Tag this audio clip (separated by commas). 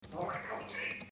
Speech, Human voice